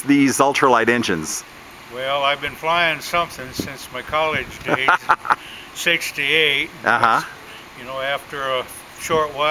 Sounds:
Speech, outside, rural or natural

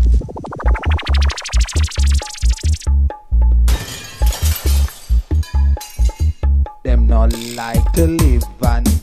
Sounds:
Music

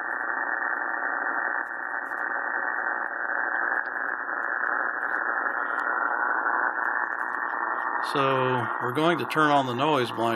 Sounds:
Speech, Cacophony

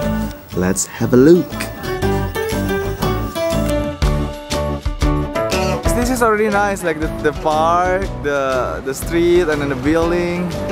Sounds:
Music, Speech

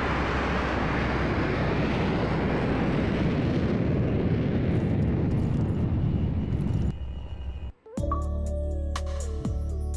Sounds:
Music

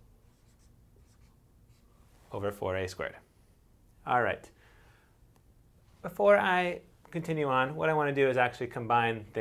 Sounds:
inside a small room, Speech

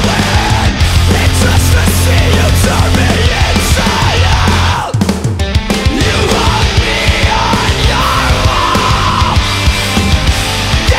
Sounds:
Music

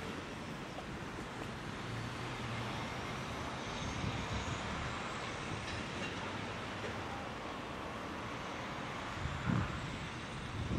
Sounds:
Vehicle

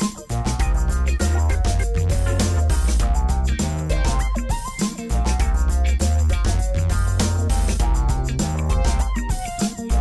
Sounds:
Music

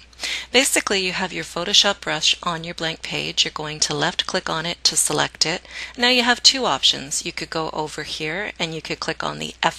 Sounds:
Speech

